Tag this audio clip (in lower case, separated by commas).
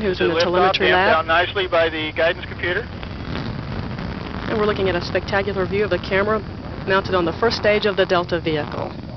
speech